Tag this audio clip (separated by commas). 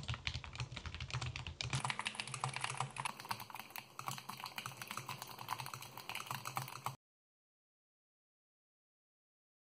typing on computer keyboard